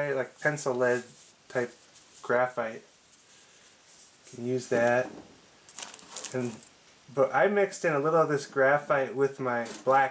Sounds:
speech

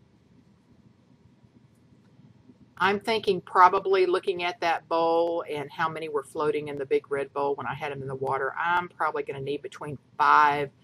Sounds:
speech

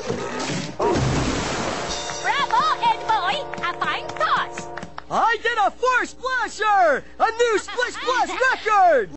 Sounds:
water, speech

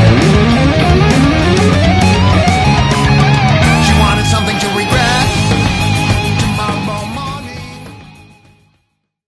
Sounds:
strum, electric guitar, plucked string instrument, guitar, music, musical instrument

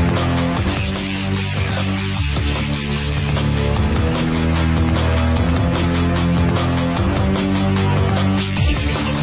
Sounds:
music

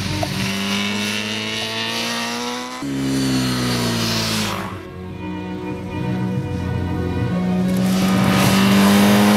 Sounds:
race car, vehicle, motor vehicle (road), music, motorcycle

